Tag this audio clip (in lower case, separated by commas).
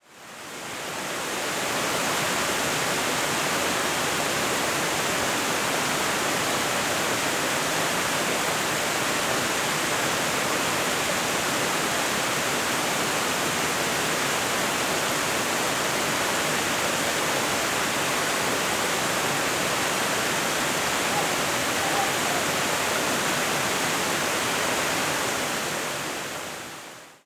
water, stream